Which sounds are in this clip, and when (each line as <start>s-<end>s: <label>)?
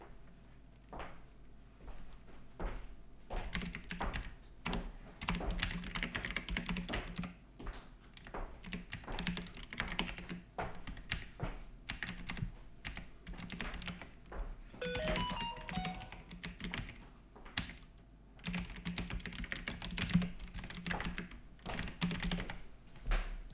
0.9s-11.7s: footsteps
3.5s-22.6s: keyboard typing
13.7s-17.8s: footsteps
14.8s-16.1s: phone ringing
20.8s-23.5s: footsteps